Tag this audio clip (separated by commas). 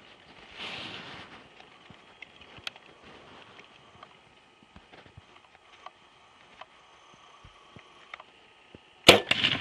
Cap gun